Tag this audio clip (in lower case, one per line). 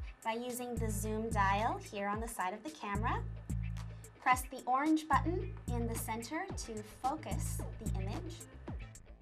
speech
music